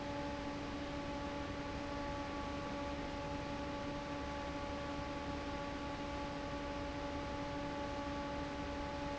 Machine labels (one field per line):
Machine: fan